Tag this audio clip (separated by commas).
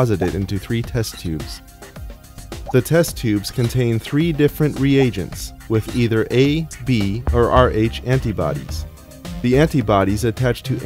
Music, Speech